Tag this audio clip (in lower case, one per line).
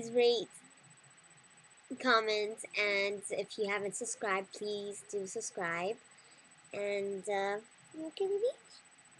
speech